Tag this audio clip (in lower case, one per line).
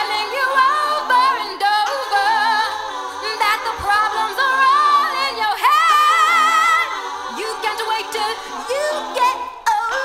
vocal music
music